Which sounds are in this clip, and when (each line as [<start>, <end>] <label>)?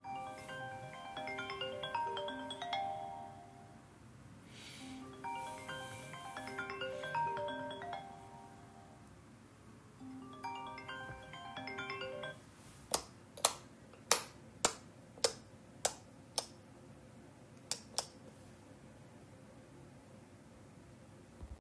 [0.00, 3.35] phone ringing
[4.49, 8.41] phone ringing
[10.01, 12.84] phone ringing
[12.88, 16.63] light switch
[17.60, 18.23] light switch